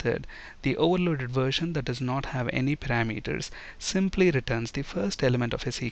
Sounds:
Speech

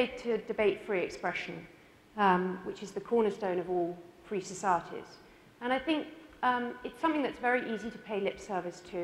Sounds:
Speech, woman speaking, Narration

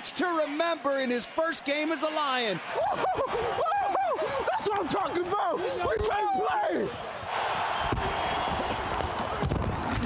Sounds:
Speech

